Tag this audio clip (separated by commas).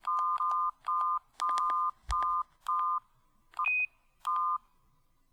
Telephone, Alarm